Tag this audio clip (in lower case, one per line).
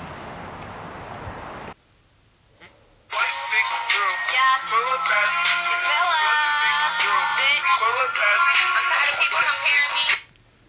speech
inside a small room
music